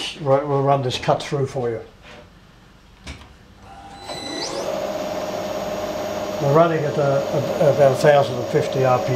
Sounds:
Speech, inside a large room or hall

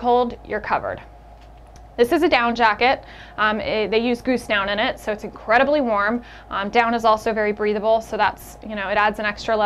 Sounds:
Speech

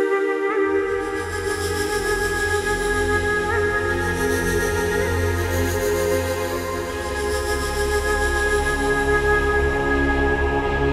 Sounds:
New-age music, Music

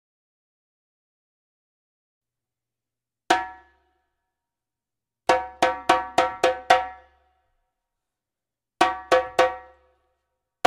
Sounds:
playing djembe

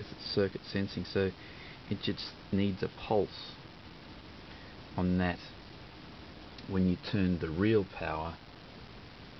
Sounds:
Speech

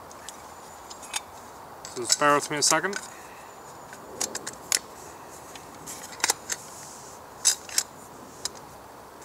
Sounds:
Speech

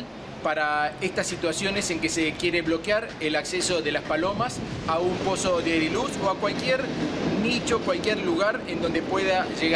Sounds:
outside, urban or man-made, Speech, Male speech

